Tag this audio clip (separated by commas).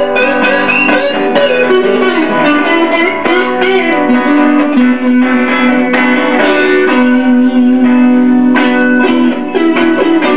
Musical instrument, Guitar, Strum, Music, Plucked string instrument, Electric guitar